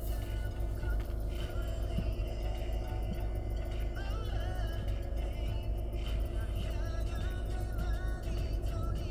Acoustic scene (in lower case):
car